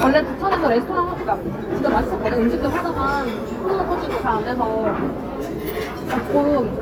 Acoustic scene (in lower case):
restaurant